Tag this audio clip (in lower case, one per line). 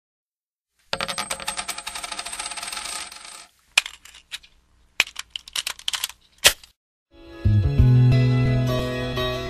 music